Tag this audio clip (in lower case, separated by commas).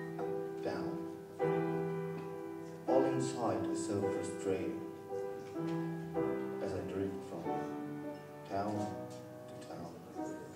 speech, music